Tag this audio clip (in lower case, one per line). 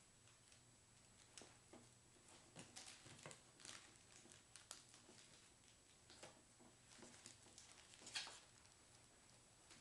inside a small room